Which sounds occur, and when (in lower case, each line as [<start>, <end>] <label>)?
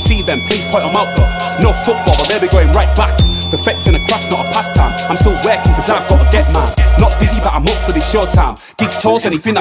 [0.00, 1.06] male singing
[0.00, 9.60] music
[1.56, 3.09] male singing
[3.49, 6.73] male singing
[6.93, 8.59] male singing
[8.55, 8.75] breathing
[8.75, 9.60] male singing